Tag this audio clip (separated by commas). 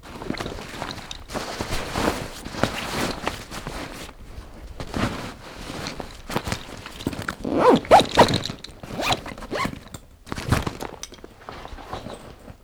Zipper (clothing), home sounds